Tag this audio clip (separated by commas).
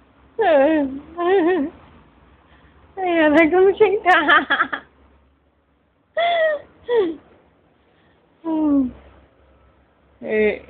Speech